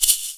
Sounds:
music, percussion, musical instrument, rattle (instrument)

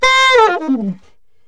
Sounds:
music, musical instrument, woodwind instrument

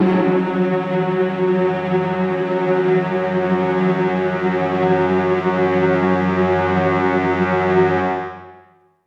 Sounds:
music, musical instrument

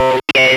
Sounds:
speech, human voice

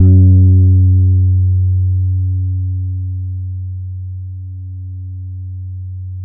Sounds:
guitar, musical instrument, plucked string instrument, bass guitar, music

